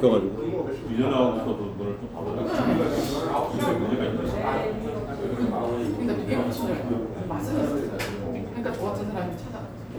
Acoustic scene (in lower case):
restaurant